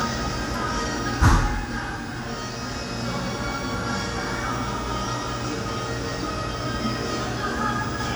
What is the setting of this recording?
cafe